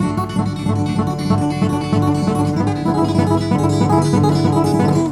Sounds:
guitar, plucked string instrument, musical instrument, acoustic guitar, music

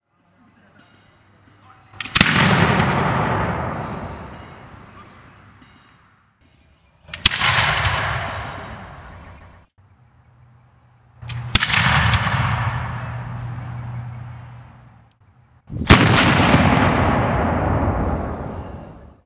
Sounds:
explosion

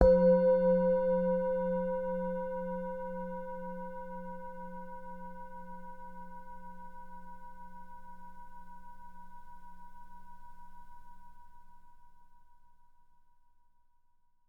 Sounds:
musical instrument, music

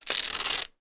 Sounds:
tearing

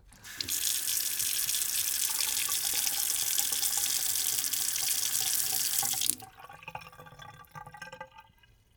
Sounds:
water tap, home sounds, splash, sink (filling or washing), liquid

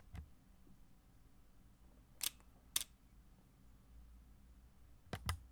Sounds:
camera, mechanisms

